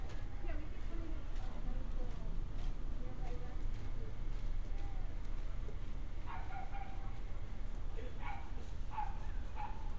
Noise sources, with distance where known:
person or small group talking, near; dog barking or whining, near

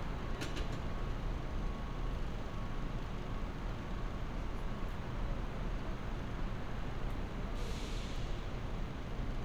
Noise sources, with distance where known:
reverse beeper, far

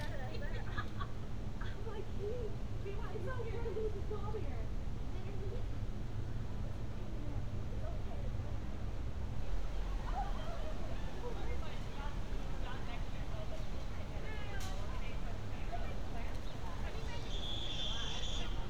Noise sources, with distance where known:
person or small group talking

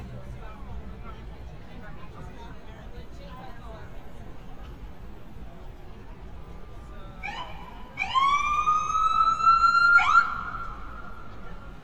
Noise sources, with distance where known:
siren, near; person or small group talking, far

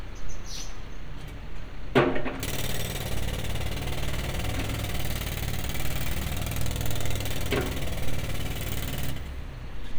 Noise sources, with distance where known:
unidentified impact machinery, near

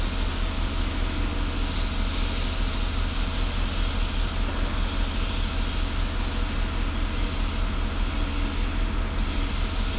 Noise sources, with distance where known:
engine of unclear size, near

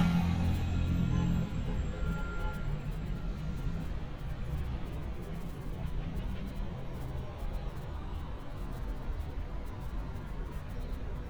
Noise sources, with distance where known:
engine of unclear size, far; unidentified alert signal, far

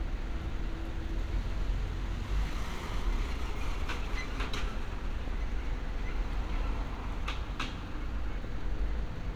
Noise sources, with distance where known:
medium-sounding engine; non-machinery impact, near

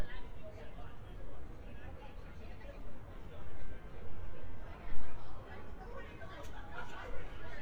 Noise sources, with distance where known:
person or small group talking, far

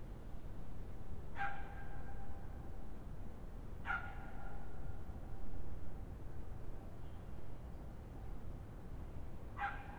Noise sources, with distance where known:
dog barking or whining, near

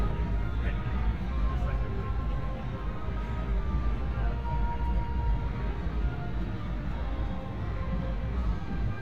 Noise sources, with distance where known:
music from an unclear source; person or small group talking

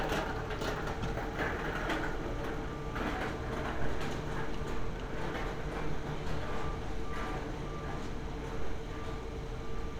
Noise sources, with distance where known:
unidentified alert signal

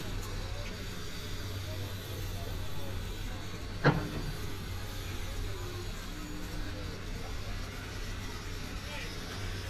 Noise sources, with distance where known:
jackhammer; unidentified human voice

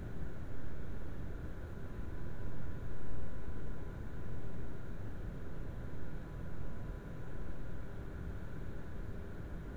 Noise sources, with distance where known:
background noise

